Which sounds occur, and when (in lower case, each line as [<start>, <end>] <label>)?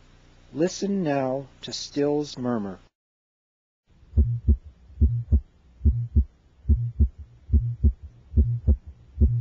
[0.46, 2.81] male speech
[4.01, 4.63] heartbeat
[4.85, 5.42] heartbeat
[5.78, 6.28] heartbeat
[6.66, 7.21] heartbeat
[7.45, 8.03] heartbeat
[8.26, 8.91] heartbeat